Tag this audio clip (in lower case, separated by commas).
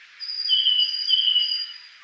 wild animals, bird, animal